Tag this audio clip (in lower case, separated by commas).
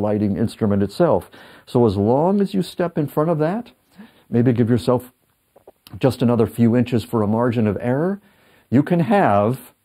speech, inside a small room